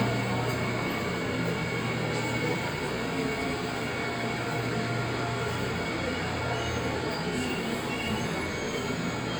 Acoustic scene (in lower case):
subway train